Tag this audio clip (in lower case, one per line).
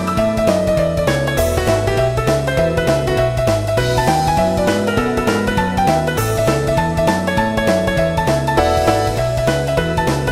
music